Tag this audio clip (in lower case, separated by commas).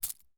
home sounds, keys jangling